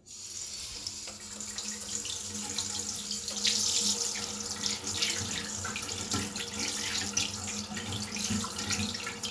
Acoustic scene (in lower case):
restroom